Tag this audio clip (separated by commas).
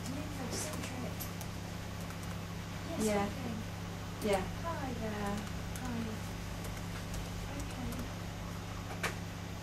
Speech